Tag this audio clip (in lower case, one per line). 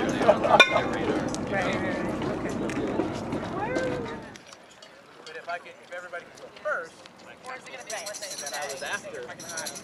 speech